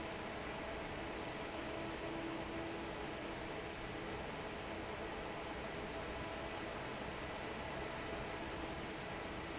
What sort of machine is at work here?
fan